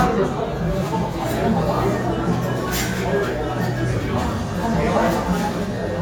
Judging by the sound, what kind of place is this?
restaurant